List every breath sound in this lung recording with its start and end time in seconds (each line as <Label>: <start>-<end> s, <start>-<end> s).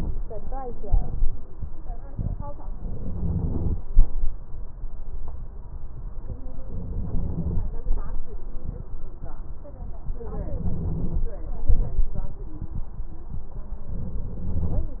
Inhalation: 2.93-3.78 s, 6.73-7.58 s, 10.40-11.25 s, 14.01-14.86 s